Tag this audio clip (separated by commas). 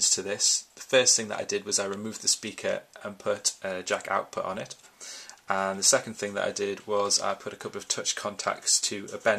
Speech